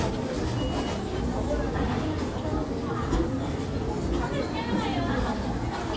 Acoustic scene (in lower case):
crowded indoor space